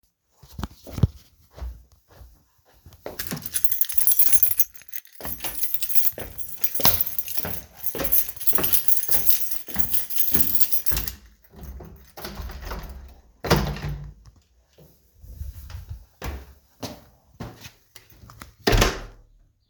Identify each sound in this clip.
footsteps, keys, door